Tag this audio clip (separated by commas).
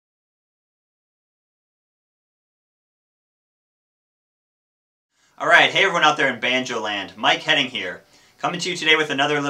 Speech